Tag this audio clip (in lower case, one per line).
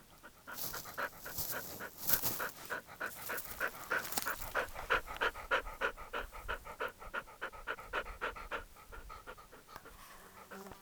animal
domestic animals
dog